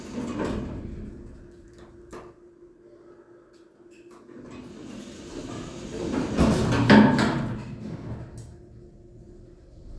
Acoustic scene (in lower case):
elevator